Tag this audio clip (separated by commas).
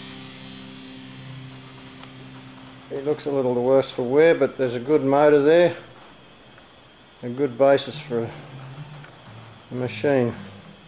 Speech